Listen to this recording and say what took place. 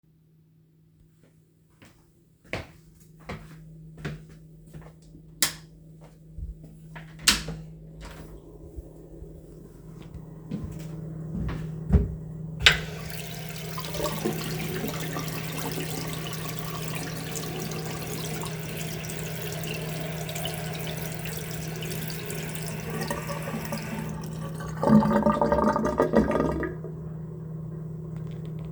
Went from the living room to the bathroom door, flipped the light switch, opened the door and ran the tap to wash my hands